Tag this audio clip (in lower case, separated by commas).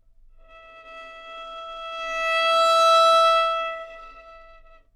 musical instrument, music, bowed string instrument